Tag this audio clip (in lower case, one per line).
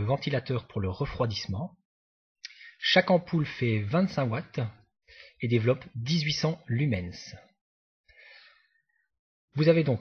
speech